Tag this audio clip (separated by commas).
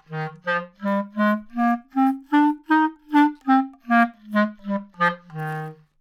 Musical instrument, Wind instrument, Music